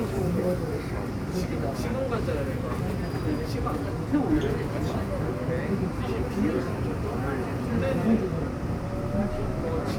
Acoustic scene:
subway train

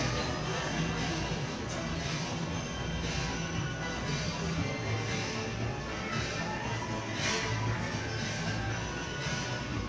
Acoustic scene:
crowded indoor space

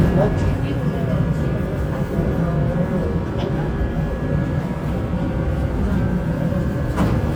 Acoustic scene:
subway train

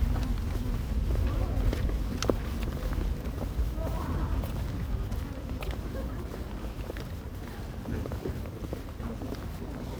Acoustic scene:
residential area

